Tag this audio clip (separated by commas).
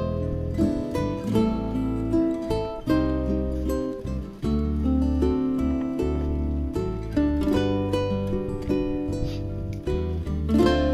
Music